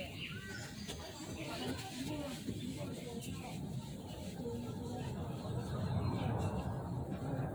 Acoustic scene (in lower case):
park